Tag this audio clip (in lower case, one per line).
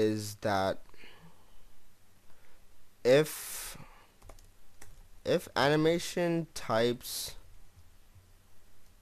speech
computer keyboard